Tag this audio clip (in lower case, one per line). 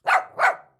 dog
domestic animals
animal
bark